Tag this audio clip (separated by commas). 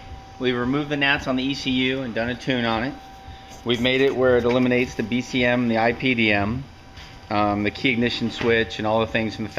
Speech